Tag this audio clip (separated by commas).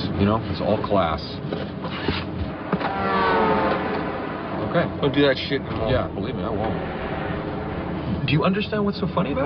Speech, outside, urban or man-made